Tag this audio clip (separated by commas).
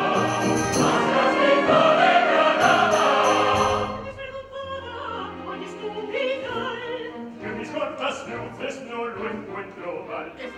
Choir, Music, Opera